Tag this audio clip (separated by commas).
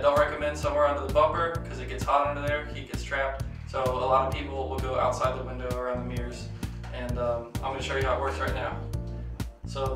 Speech, Music